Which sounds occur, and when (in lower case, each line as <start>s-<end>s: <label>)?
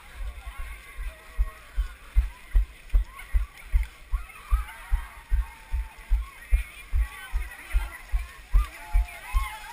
0.0s-1.2s: run
0.0s-9.7s: crowd
0.0s-9.7s: speech babble
1.3s-1.4s: run
1.7s-1.8s: run
2.1s-2.2s: run
2.5s-2.6s: run
2.8s-3.0s: run
3.3s-3.4s: run
3.7s-3.8s: run
4.1s-4.2s: run
4.5s-4.6s: run
4.9s-5.0s: run
5.3s-5.4s: run
5.7s-5.8s: run
6.1s-6.2s: run
6.5s-6.7s: run
6.9s-7.0s: run
7.3s-7.4s: run
7.7s-7.8s: run
8.1s-8.3s: run
8.5s-8.6s: run
8.9s-9.0s: run
9.3s-9.4s: run
9.6s-9.7s: run